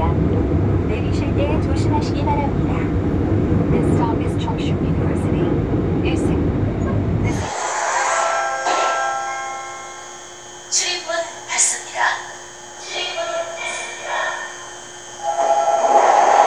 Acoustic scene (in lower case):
subway train